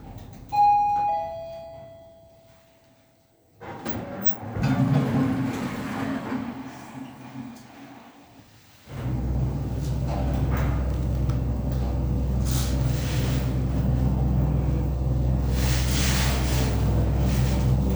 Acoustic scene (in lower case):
elevator